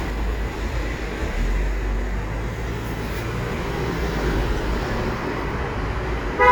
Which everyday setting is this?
street